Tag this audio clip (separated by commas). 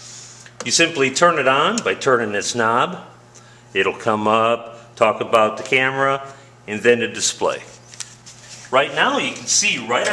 Speech